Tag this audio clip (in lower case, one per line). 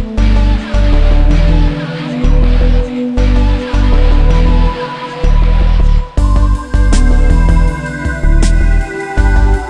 background music
music